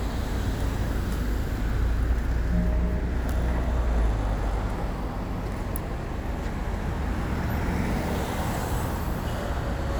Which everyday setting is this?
street